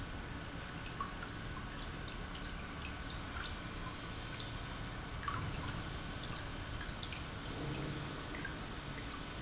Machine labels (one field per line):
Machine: pump